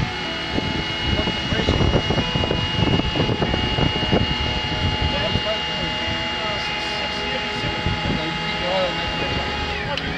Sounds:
Music, Speech

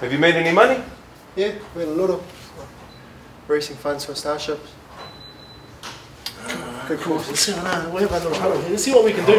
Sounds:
Speech

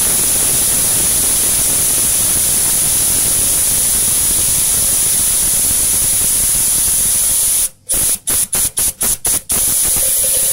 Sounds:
pumping water

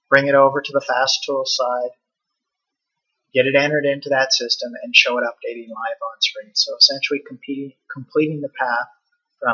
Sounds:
Speech

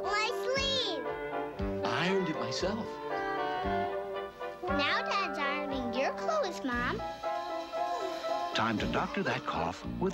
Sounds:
Speech, Music

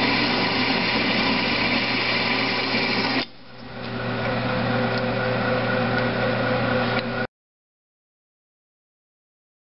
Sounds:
Tools

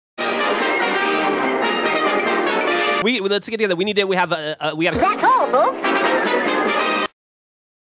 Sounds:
Music, Speech

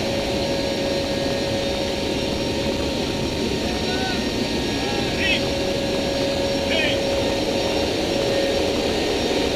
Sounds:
Speech

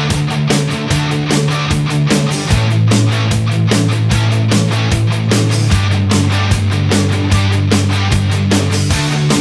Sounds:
Music

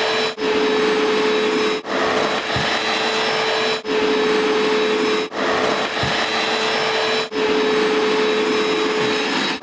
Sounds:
vacuum cleaner cleaning floors

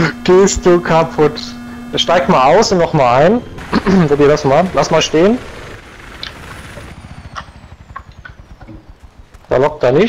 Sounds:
Vehicle, Helicopter, Speech

